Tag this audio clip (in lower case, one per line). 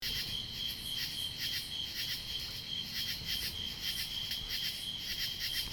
cricket
animal
wild animals
insect